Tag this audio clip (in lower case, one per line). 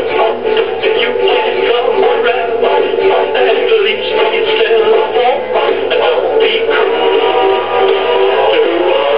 synthetic singing
music